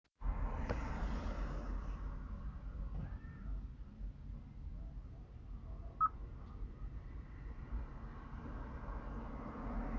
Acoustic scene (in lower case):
residential area